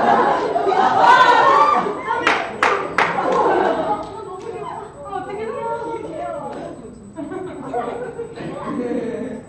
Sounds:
speech

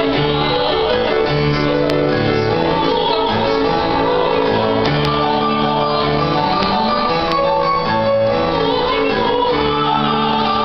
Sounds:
choir
female singing
music

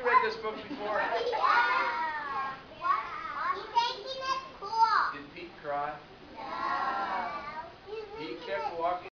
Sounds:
speech

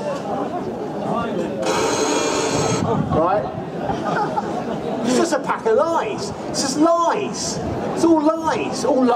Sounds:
speech

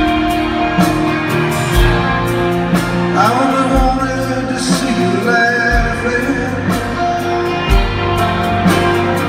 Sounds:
music

